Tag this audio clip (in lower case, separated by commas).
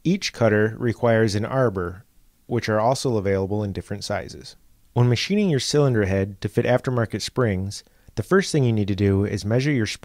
speech